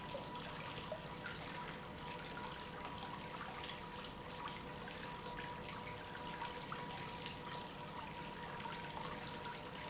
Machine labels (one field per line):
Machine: pump